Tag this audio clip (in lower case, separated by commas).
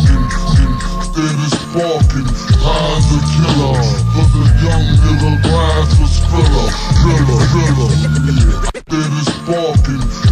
music